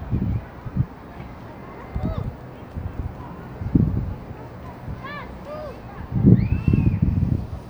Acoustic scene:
residential area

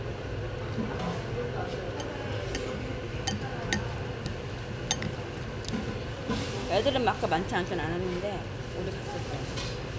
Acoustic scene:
restaurant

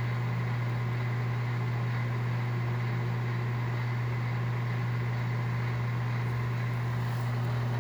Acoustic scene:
kitchen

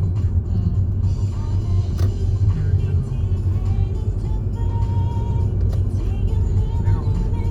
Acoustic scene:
car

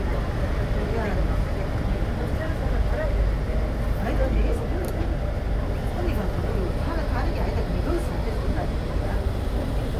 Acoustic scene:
bus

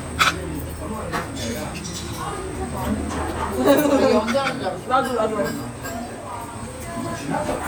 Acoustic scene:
restaurant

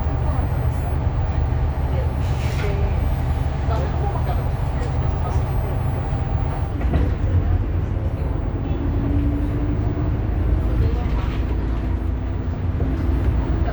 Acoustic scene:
bus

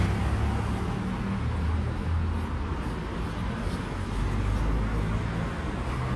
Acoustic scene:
street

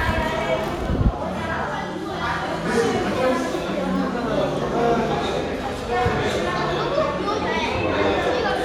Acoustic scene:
crowded indoor space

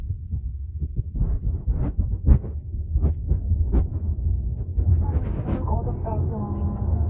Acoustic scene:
car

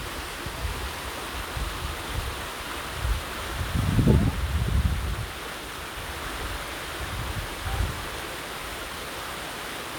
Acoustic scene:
park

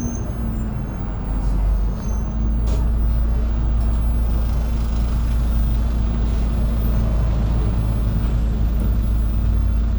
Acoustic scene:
bus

